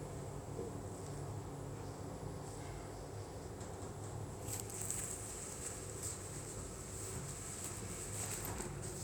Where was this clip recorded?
in an elevator